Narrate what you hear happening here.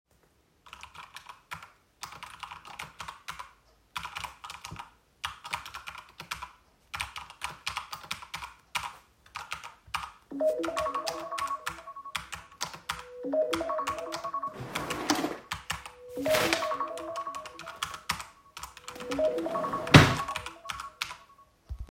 I started typing on the keyboard. While I was still typing, my alarm started ringing. While the alarm was ringing and I was still typing, I opened the drawer, took out a paper, and closed the drawer.